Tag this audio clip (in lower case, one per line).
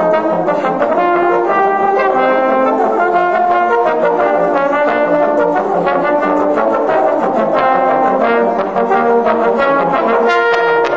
playing trombone